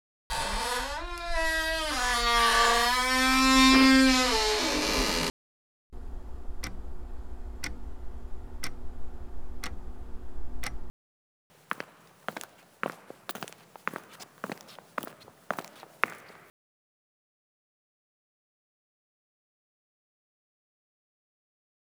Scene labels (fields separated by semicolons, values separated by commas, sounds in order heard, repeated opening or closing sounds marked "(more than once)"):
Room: hallway; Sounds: door, microwave, footsteps